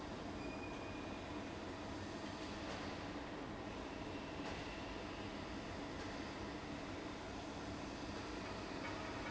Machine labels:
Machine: fan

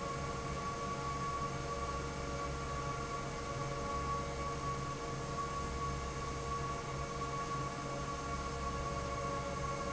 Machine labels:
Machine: fan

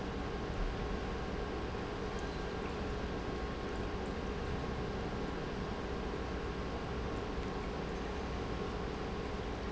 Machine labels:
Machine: pump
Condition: normal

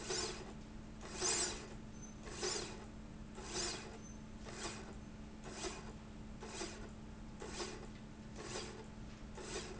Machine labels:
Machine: slide rail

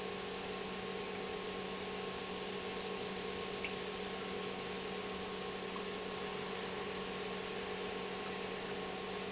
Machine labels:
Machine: pump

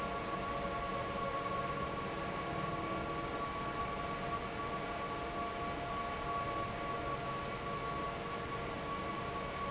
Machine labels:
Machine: fan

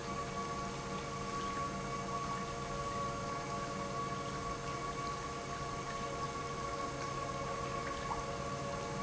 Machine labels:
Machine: pump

